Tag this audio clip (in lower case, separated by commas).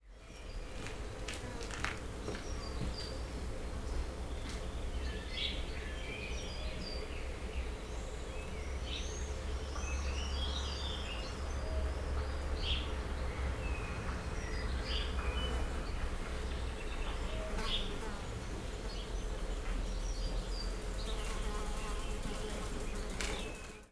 animal, insect, wild animals